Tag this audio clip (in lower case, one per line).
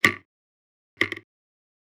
tick